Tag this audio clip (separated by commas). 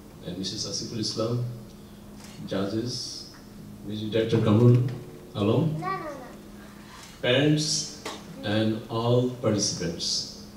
Speech, man speaking, Narration